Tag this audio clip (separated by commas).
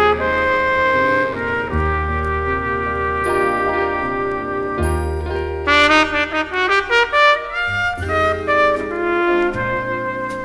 Music